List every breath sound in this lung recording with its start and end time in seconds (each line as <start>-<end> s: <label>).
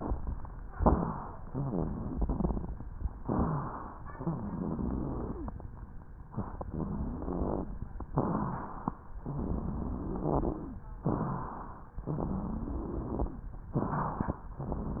0.78-1.43 s: inhalation
0.81-1.06 s: crackles
1.45-2.09 s: wheeze
1.47-2.85 s: exhalation
2.16-2.81 s: crackles
3.25-4.00 s: inhalation
4.10-5.48 s: exhalation
4.13-5.38 s: wheeze
6.30-6.67 s: inhalation
6.64-7.69 s: wheeze
6.67-7.67 s: exhalation
8.11-8.90 s: inhalation
9.22-10.80 s: exhalation
9.39-10.61 s: wheeze
11.04-11.95 s: inhalation
12.05-13.39 s: exhalation
12.06-13.28 s: wheeze
13.71-14.46 s: inhalation
14.60-15.00 s: exhalation
14.61-15.00 s: wheeze